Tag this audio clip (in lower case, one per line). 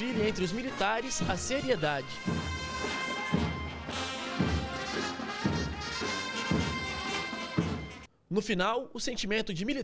people marching